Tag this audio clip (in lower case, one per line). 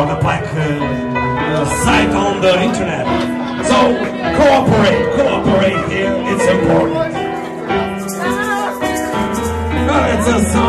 music
speech